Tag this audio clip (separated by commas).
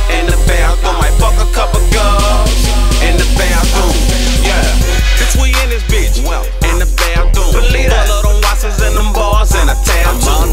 Music